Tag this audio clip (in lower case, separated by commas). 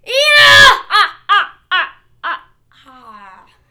laughter, human voice